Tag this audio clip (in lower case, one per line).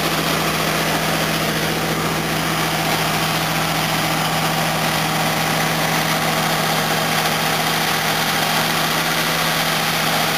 car
vehicle
engine